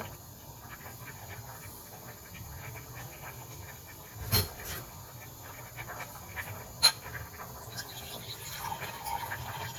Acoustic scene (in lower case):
kitchen